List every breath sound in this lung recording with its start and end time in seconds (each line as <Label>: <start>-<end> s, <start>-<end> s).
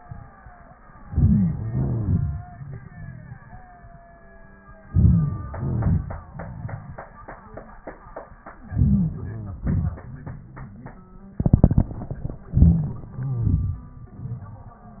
Inhalation: 1.00-1.57 s, 4.86-5.51 s, 8.69-9.58 s, 12.53-13.06 s
Exhalation: 1.59-3.60 s, 5.53-7.11 s, 9.58-10.98 s, 13.06-15.00 s
Crackles: 1.09-1.55 s, 1.57-3.32 s, 4.86-5.48 s, 5.50-6.21 s, 8.69-9.58 s, 12.53-13.06 s, 13.06-13.79 s